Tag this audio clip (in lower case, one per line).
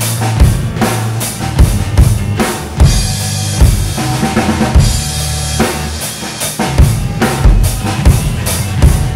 drum kit
drum
bass drum
musical instrument
music